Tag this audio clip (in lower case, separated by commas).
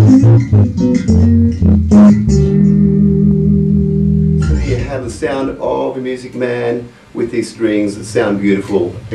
music, musical instrument, plucked string instrument, speech, guitar, bass guitar